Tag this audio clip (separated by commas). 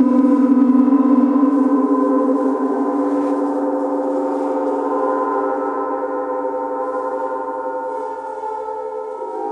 playing gong